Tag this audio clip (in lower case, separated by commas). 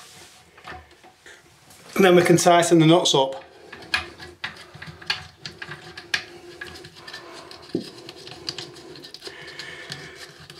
speech